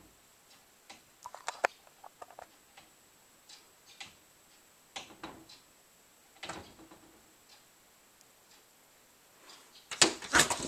Soft repeated tapping followed by a loud tap